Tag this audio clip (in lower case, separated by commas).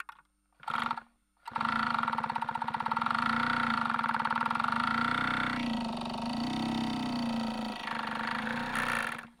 mechanisms